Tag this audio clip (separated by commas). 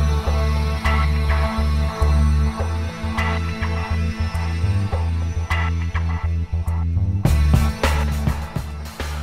Music